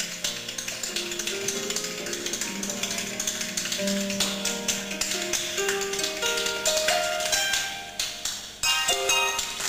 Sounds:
tap dancing

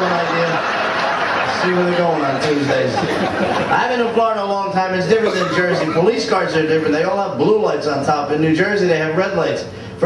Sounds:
speech

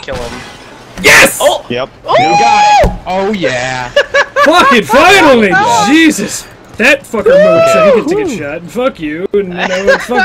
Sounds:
speech

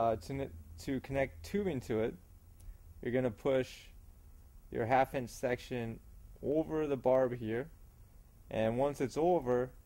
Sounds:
speech

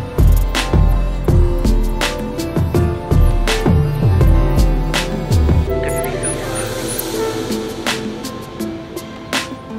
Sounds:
mouse squeaking

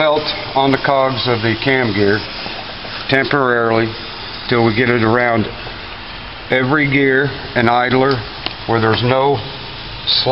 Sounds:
speech

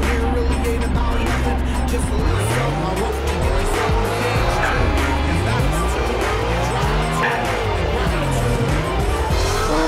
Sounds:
car
music

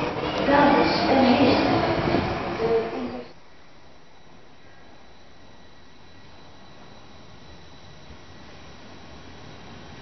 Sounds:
speech
vehicle

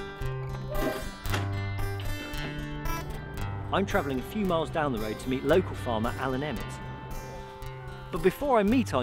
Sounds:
speech
music

